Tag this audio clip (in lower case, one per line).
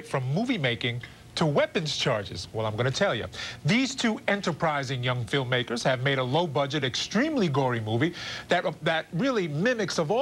speech